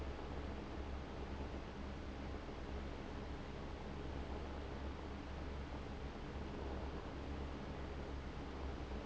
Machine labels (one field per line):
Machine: fan